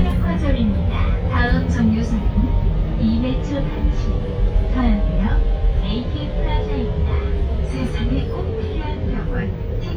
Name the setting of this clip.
bus